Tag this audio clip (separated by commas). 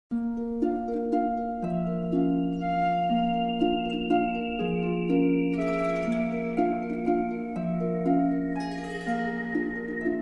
Music